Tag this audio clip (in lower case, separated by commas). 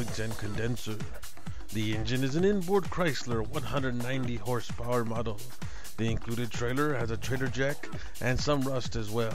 music, speech